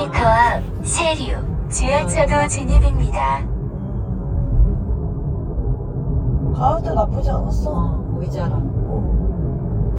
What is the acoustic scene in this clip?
car